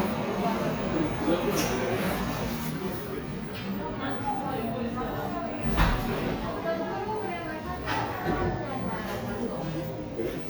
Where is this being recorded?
in a cafe